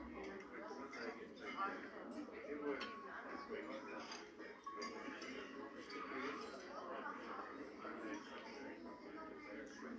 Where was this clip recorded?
in a restaurant